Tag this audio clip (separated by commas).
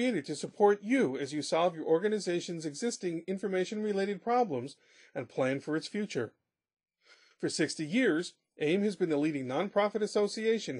Speech